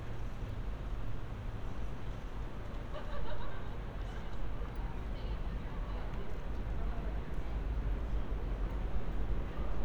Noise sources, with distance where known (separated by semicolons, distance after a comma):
person or small group talking